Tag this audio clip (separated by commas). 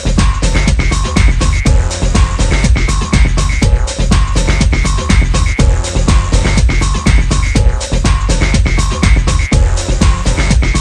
Soundtrack music, Music